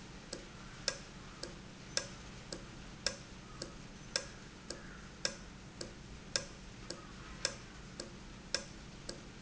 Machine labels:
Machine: valve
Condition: normal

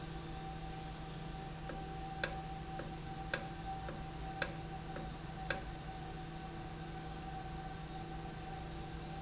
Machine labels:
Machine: valve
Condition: normal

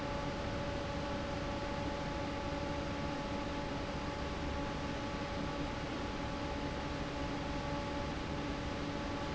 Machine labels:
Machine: fan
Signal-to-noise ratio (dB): -6 dB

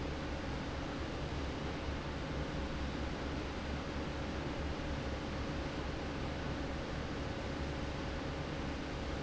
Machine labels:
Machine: fan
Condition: normal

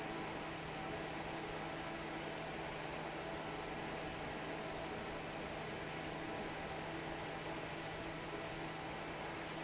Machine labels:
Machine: fan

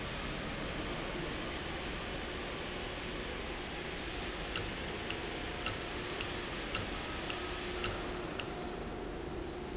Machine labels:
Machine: valve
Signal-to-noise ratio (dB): -6 dB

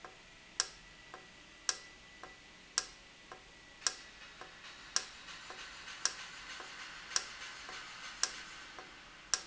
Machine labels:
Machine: valve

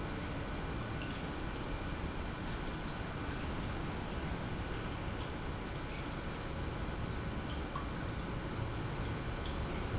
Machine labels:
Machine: pump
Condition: normal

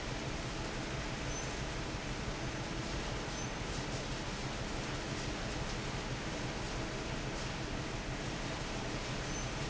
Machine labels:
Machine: fan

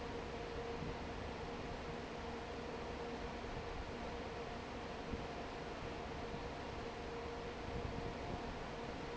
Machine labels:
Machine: fan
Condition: normal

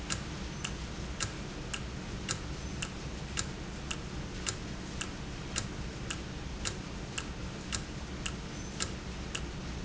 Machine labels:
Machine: valve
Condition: normal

